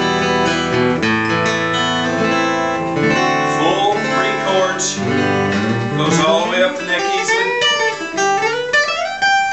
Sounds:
Music, Plucked string instrument, Musical instrument, Guitar, Electric guitar, Strum, Acoustic guitar

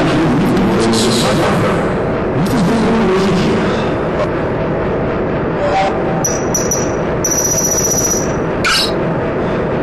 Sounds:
Speech

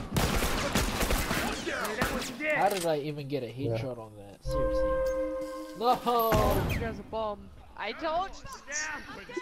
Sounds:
Speech, Thunk

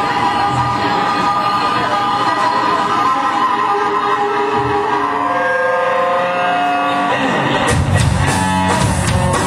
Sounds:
Drum, Percussion, Drum kit, Musical instrument, Bowed string instrument, Rock music, Guitar, Plucked string instrument, Music

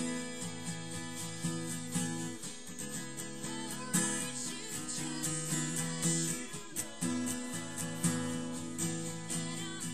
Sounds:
Musical instrument, Plucked string instrument, Guitar, Strum, Acoustic guitar, Music

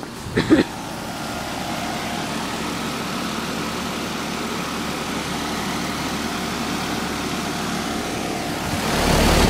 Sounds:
Mechanical fan

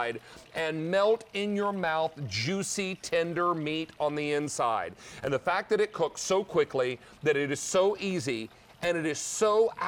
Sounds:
Speech

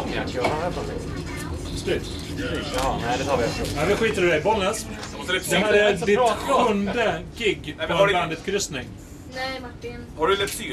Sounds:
Speech

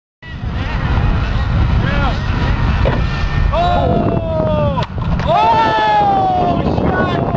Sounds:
Speech

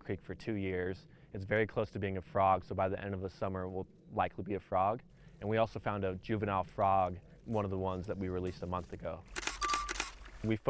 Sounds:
Speech

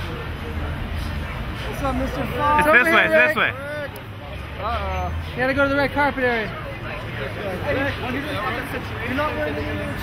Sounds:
Vehicle, Speech, Car

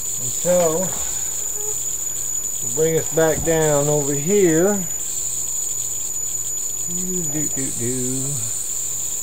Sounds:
Speech, inside a small room

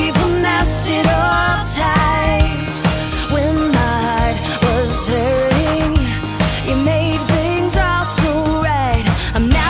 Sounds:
Music

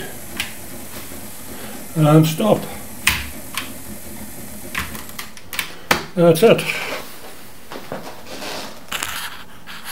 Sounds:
Speech

